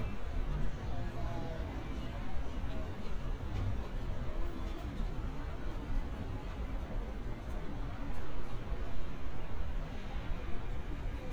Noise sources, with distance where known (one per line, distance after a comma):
person or small group talking